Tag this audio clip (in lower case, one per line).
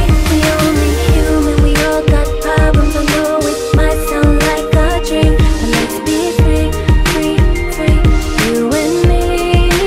music